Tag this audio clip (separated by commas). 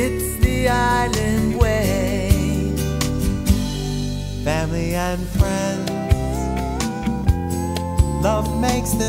Music